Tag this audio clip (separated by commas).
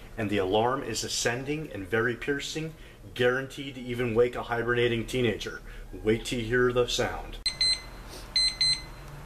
Speech